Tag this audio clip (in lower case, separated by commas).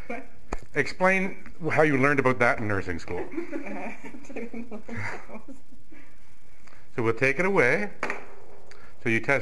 speech, inside a large room or hall